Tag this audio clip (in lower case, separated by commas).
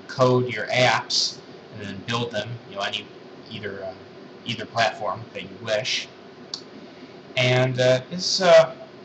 speech